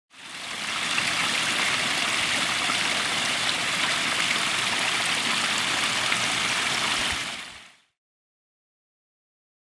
Heavy rain falling